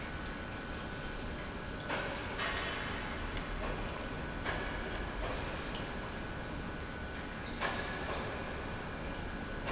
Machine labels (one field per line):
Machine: pump